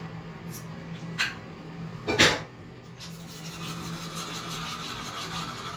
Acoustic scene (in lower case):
restroom